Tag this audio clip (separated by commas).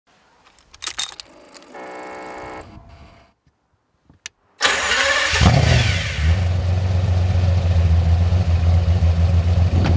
Car, Vehicle